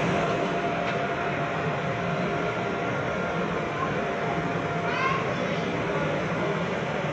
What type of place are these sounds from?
subway train